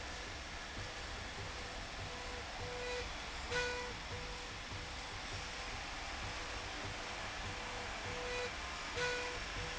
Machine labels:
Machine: slide rail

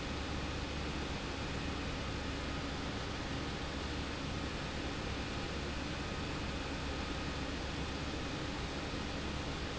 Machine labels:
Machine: pump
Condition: abnormal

